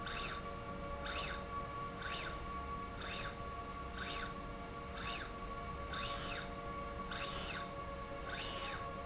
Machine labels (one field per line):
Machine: slide rail